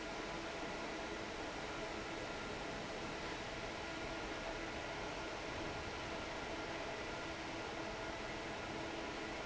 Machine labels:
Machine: fan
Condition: normal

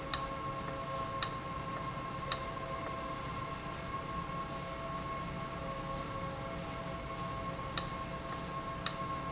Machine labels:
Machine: valve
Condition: abnormal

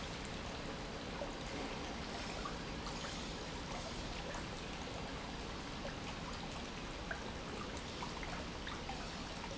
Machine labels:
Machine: pump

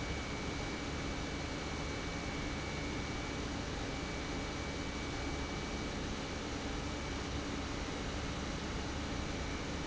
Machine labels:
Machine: pump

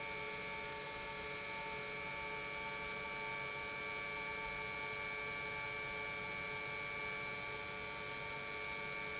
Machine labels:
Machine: pump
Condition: normal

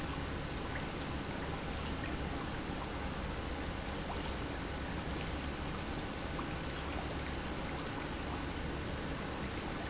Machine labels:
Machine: pump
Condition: normal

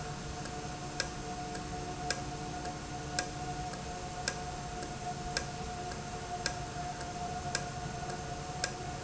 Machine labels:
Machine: valve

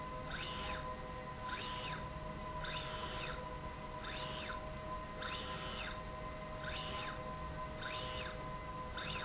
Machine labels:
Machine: slide rail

